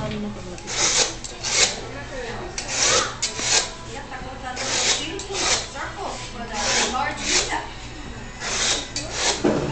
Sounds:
Music, Speech, Tools

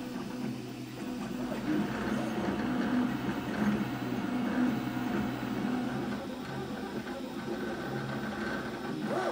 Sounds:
printer printing

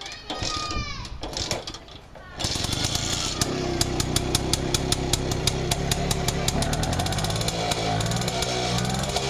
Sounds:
Speech

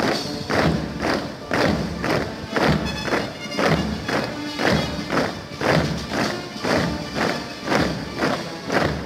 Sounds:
people marching

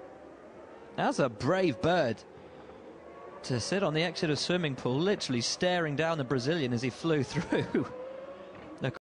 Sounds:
Speech

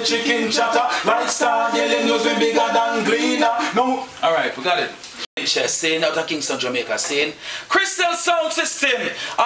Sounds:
Speech

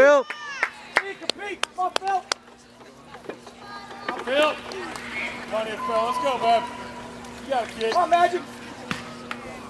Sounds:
Speech

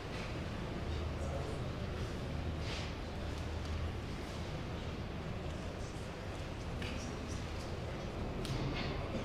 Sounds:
Speech

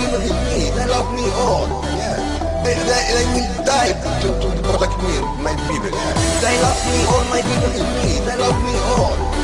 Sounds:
Music

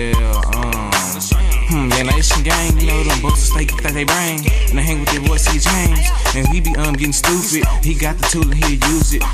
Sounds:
Music, Singing, Hip hop music

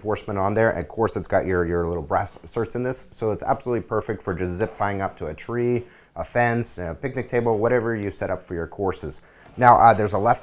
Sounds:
Speech

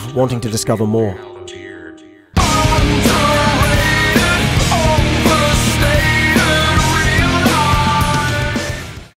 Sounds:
Music, Speech

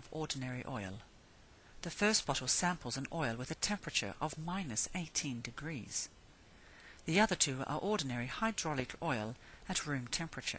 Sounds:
Speech

